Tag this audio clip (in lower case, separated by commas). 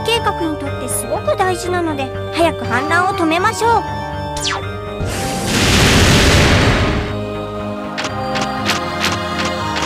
music, speech